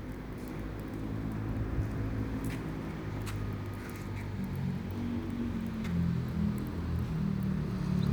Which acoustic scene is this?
residential area